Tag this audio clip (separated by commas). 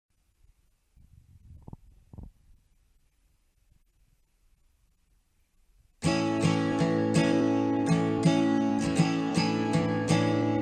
Silence, Music